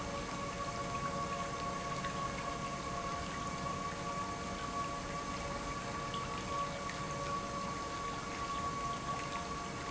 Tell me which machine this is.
pump